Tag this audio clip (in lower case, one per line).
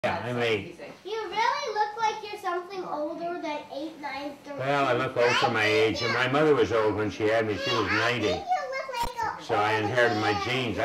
speech
child speech